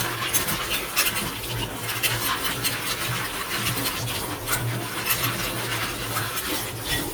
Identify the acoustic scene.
kitchen